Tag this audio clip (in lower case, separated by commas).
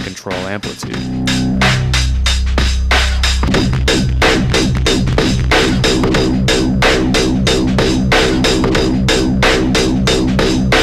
speech, music, synthesizer